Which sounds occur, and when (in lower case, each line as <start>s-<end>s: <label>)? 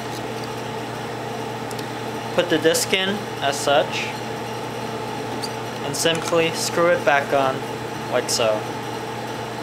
0.0s-9.6s: mechanisms
0.1s-0.5s: generic impact sounds
1.7s-1.8s: generic impact sounds
2.3s-3.2s: man speaking
3.4s-4.1s: man speaking
5.4s-5.5s: squeal
5.7s-7.6s: man speaking
6.1s-6.3s: generic impact sounds
6.5s-6.7s: generic impact sounds
8.1s-8.6s: man speaking